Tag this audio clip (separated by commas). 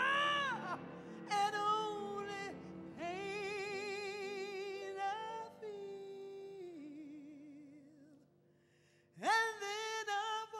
Female singing